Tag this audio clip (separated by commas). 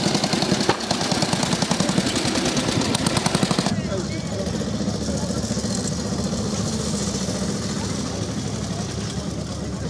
Speech, Vehicle, Motorcycle